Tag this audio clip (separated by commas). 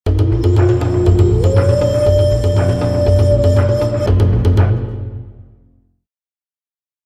Music, Funk, Background music, Theme music